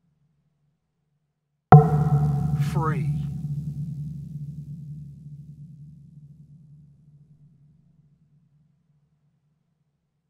A deep beep echoed with a voice